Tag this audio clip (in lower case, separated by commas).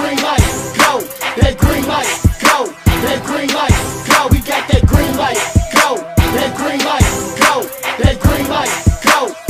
music, dance music